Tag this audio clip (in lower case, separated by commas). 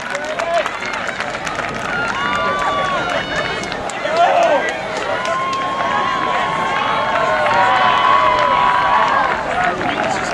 outside, urban or man-made, speech